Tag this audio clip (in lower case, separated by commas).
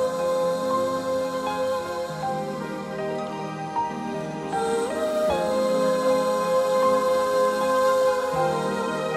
music